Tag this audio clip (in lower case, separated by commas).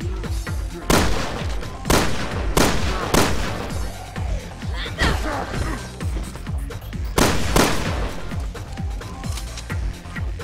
speech, music